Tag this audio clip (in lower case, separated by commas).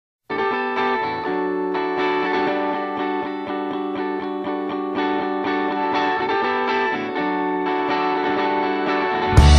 effects unit, music